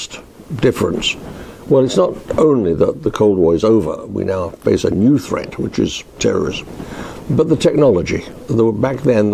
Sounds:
Speech

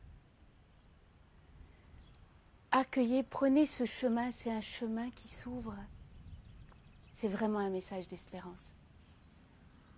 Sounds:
Speech

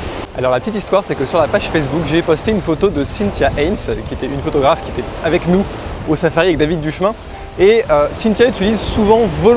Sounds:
Music, Speech

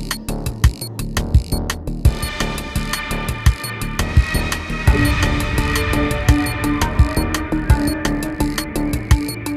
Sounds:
Soundtrack music, Music

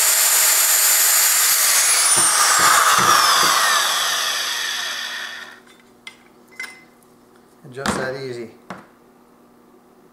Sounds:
Tools, Speech

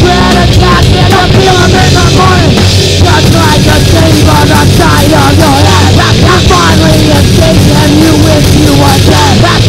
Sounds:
Speech, Music

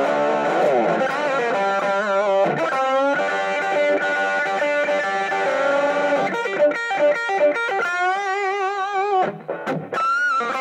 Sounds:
Blues, Music

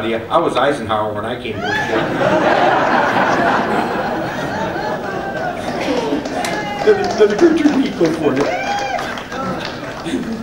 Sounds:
Speech

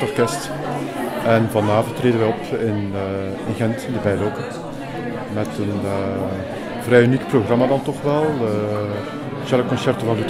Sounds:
Speech

